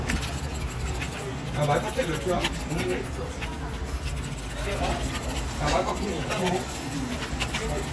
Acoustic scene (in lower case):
crowded indoor space